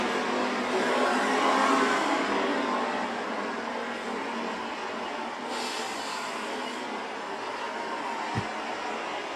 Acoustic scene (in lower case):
street